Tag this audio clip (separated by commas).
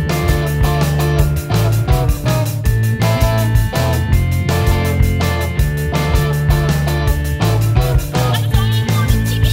Music